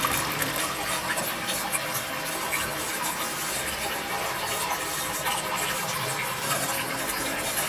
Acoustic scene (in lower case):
restroom